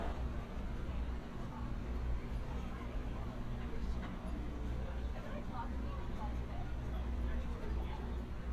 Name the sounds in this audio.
person or small group talking